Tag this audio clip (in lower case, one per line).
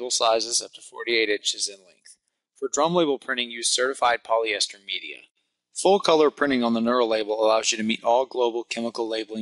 speech